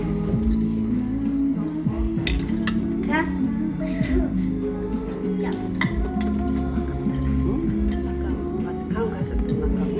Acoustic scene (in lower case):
crowded indoor space